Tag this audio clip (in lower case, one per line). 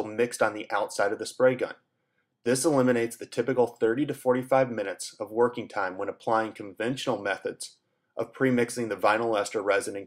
speech